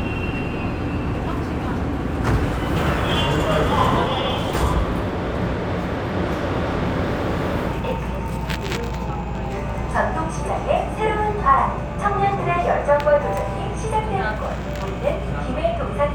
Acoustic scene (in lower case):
subway train